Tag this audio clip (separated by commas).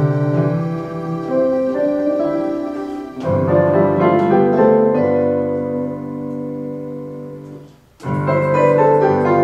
Music, Tender music